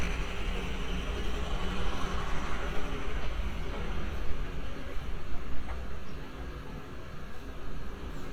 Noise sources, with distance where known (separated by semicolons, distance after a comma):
engine of unclear size, near; person or small group talking, far